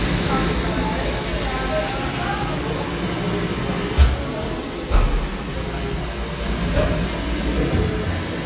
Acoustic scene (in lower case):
cafe